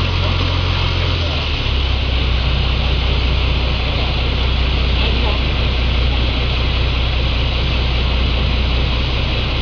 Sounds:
Speech, Water vehicle, Vehicle, speedboat, Ship

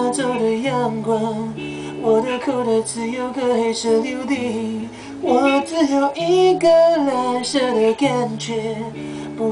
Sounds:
Music

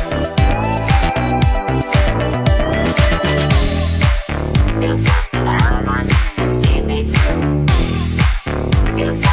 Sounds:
Music

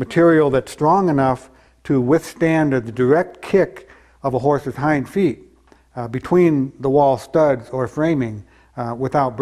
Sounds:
Speech

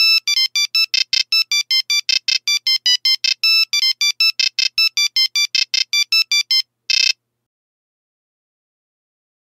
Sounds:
Ringtone

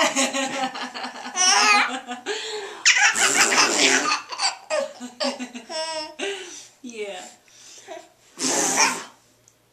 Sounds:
people belly laughing

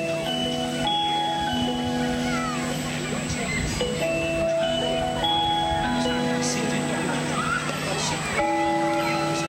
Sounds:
Speech, Music

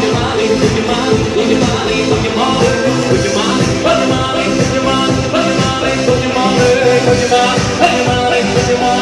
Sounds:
Music, Music of Latin America, Singing, Choir

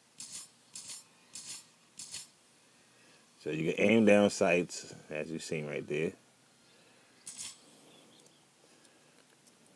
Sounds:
Speech

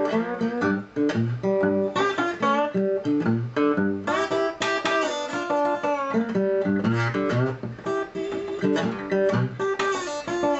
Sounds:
Music, Steel guitar

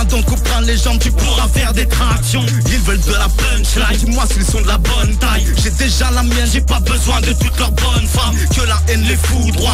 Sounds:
Music, Hip hop music, Rapping

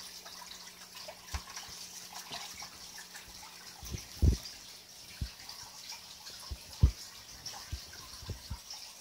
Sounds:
Water

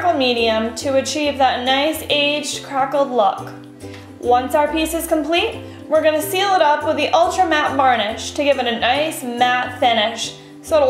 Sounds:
Speech, Music

